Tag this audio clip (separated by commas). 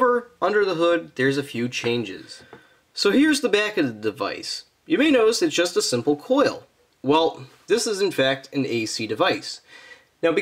Speech